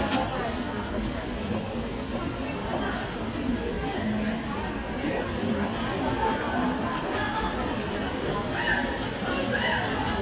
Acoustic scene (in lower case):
crowded indoor space